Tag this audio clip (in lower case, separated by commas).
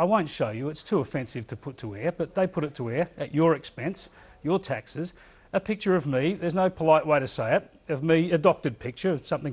speech